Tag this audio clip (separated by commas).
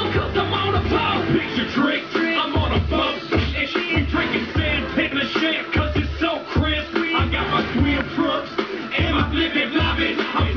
Music